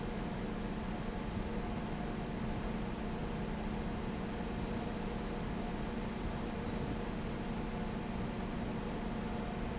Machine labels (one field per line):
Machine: fan